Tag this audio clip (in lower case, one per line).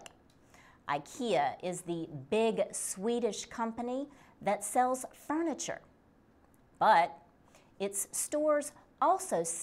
speech